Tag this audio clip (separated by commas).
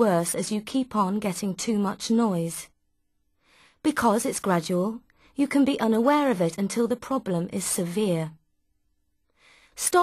Speech